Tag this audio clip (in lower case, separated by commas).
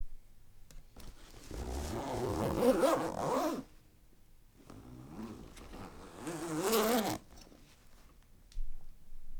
zipper (clothing), domestic sounds